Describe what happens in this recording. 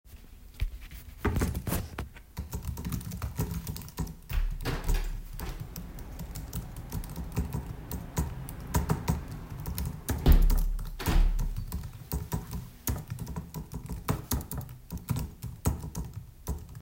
I type on a keyboard then someone opens a window